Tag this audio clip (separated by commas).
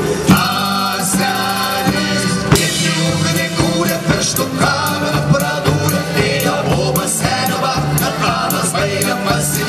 Folk music, Music